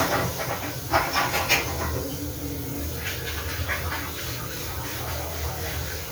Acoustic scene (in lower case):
restroom